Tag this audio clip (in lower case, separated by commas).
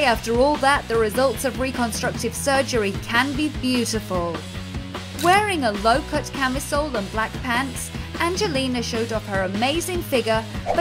speech, music